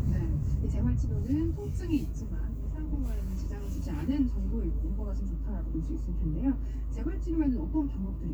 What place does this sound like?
car